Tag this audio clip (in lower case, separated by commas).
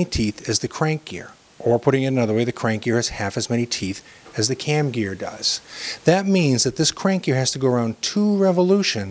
speech